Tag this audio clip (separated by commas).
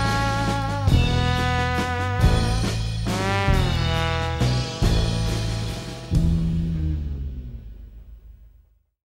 Music